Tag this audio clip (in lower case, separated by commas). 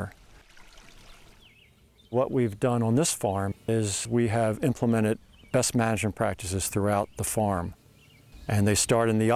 speech, stream